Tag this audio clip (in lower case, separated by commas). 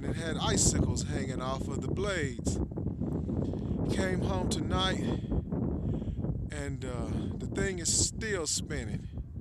wind noise (microphone), speech